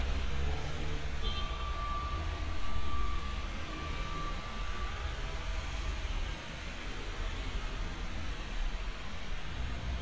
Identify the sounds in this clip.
medium-sounding engine, car horn, reverse beeper